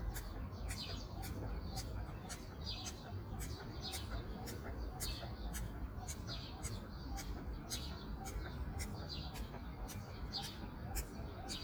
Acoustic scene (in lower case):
park